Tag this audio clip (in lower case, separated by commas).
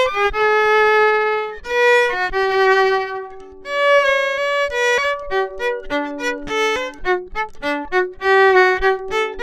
fiddle, music, musical instrument